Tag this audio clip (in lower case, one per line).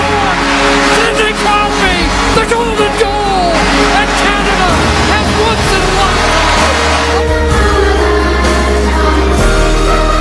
speech
music